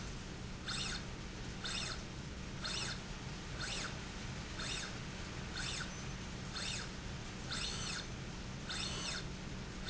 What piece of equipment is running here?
slide rail